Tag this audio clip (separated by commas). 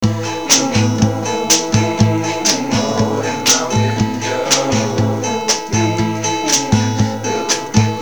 Guitar, Music, Drum, Human voice, Acoustic guitar, Percussion, Plucked string instrument, Musical instrument